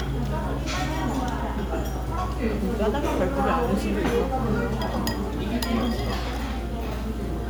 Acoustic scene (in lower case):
restaurant